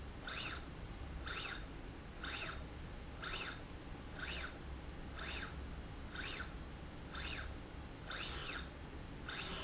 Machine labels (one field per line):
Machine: slide rail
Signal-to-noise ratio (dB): 6 dB